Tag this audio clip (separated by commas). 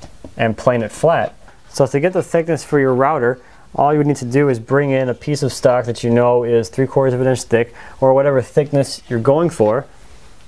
planing timber